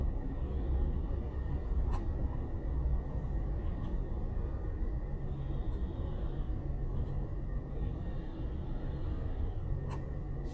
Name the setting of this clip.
car